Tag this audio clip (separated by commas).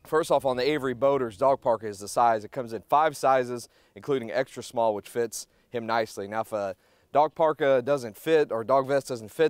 Speech